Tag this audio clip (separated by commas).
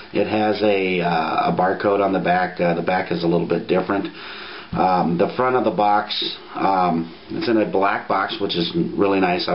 Speech